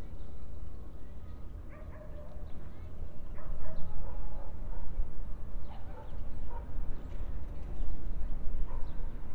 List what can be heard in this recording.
person or small group talking, dog barking or whining